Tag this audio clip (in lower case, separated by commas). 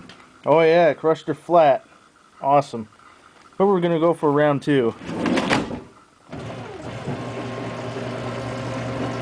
speech